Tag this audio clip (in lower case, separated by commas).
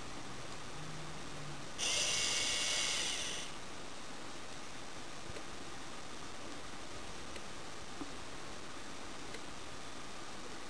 tick, tick-tock